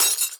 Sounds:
Shatter, Glass

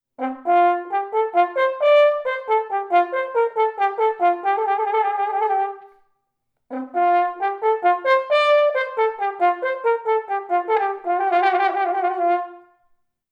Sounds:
Musical instrument, Music, Brass instrument

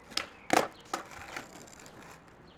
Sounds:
Vehicle, Skateboard

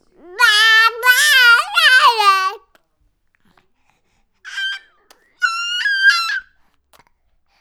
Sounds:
Human voice, Crying, Screech

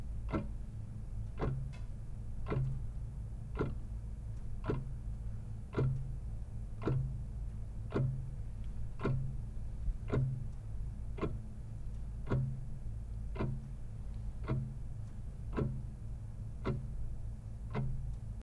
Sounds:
Clock, Mechanisms

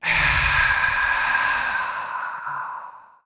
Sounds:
Sigh, Human voice

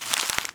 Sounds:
crinkling

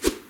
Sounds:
Whoosh

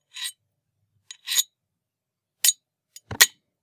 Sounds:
Domestic sounds, silverware

